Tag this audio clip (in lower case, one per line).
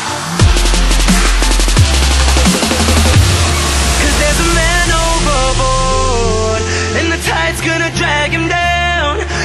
dubstep
music